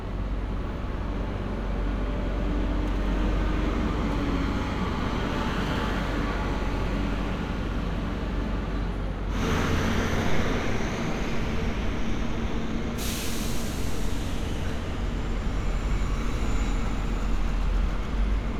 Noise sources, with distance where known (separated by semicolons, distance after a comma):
large-sounding engine, near